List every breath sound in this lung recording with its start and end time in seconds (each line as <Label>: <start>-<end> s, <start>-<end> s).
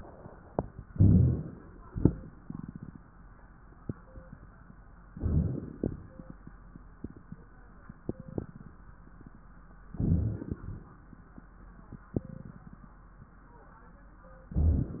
Inhalation: 0.81-1.92 s, 5.15-5.93 s, 9.88-10.56 s, 14.53-15.00 s
Exhalation: 1.92-3.02 s, 5.95-6.72 s, 10.59-11.27 s
Crackles: 5.12-5.91 s, 9.88-10.56 s, 14.53-15.00 s